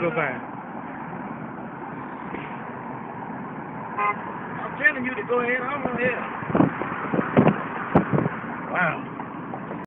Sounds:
car, speech, vehicle

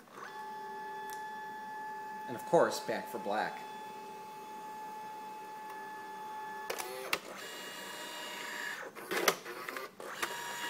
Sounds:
speech, printer

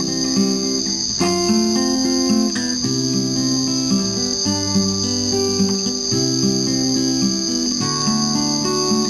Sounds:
acoustic guitar, music, playing acoustic guitar

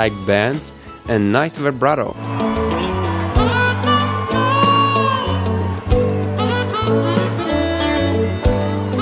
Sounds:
playing harmonica

